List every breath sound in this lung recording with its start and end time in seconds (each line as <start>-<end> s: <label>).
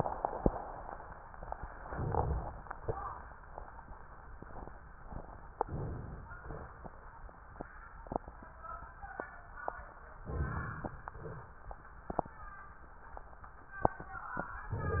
1.79-2.49 s: crackles
1.82-2.50 s: inhalation
2.79-3.32 s: exhalation
5.63-6.28 s: inhalation
6.42-6.89 s: exhalation
10.24-10.97 s: inhalation
10.98-11.59 s: exhalation